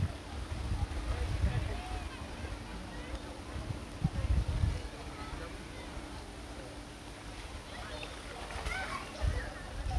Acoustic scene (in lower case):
park